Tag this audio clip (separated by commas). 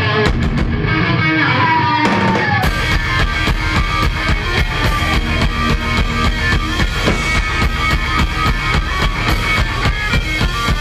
Music